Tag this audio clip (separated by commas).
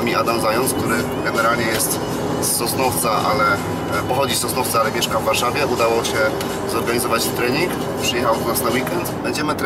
Music, Speech